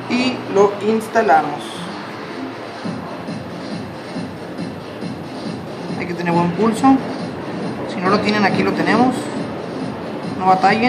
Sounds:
Music, Speech

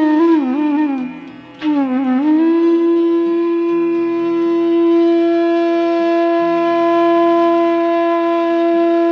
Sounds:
Music, Flute

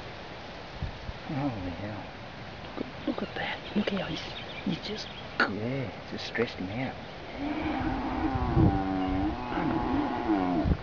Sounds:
Animal, Speech

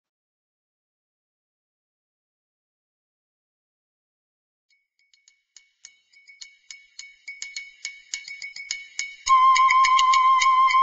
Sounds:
Music, Silence

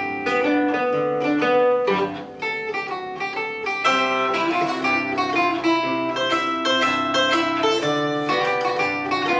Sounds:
Zither, Music

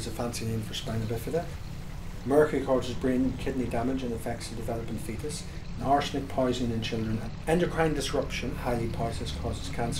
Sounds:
Stream, Speech

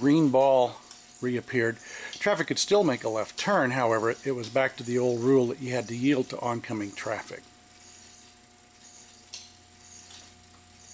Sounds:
Speech

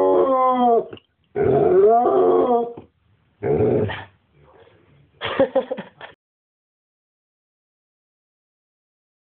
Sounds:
Domestic animals, Animal, Dog

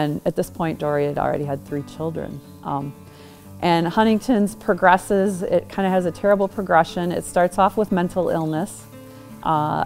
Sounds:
Speech, Music

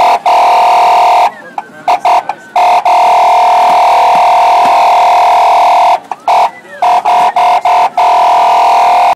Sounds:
Speech

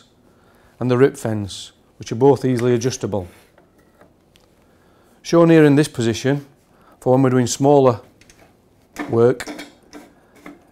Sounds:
Speech

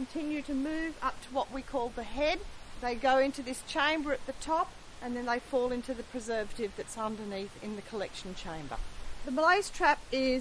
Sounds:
Speech

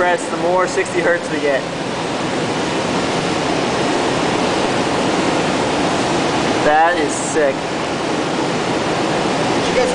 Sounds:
White noise, Speech

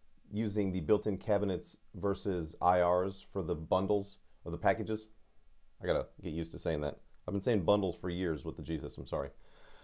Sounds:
Speech

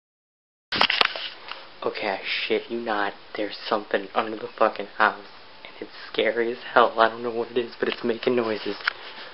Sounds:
Speech

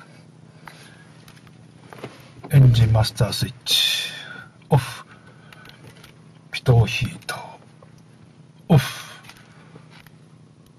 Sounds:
Speech

